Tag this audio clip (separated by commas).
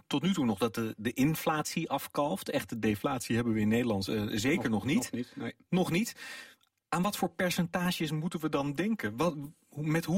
Speech